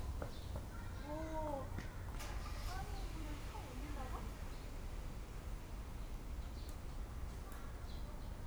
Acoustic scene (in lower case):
park